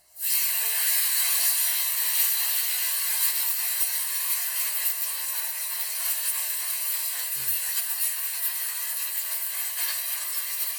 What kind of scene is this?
kitchen